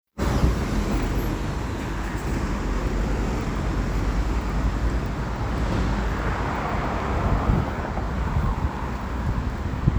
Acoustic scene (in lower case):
street